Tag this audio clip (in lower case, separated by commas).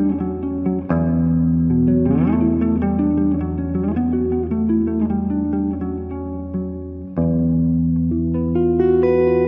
acoustic guitar, guitar, musical instrument, electric guitar, plucked string instrument, music, strum